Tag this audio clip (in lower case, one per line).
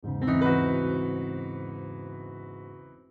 musical instrument
keyboard (musical)
music
piano